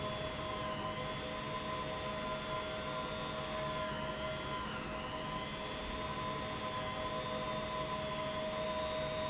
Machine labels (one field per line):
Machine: pump